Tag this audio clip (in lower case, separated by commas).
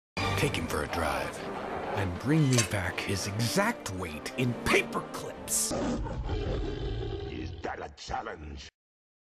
music, speech